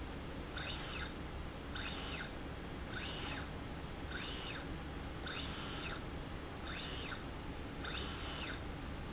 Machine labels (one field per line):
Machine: slide rail